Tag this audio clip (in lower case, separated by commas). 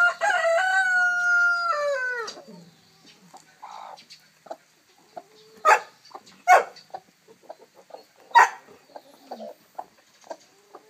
livestock, bird, chicken